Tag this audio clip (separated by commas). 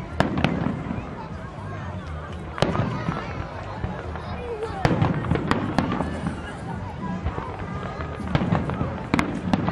Speech